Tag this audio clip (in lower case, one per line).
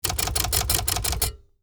typing
home sounds
typewriter